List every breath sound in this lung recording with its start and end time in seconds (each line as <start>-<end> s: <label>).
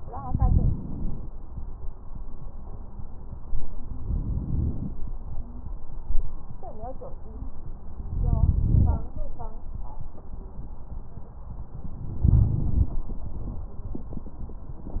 0.00-1.26 s: inhalation
0.00-1.26 s: crackles
3.99-4.94 s: inhalation
8.10-9.05 s: inhalation
8.10-9.05 s: crackles
12.23-12.95 s: inhalation
12.23-12.95 s: crackles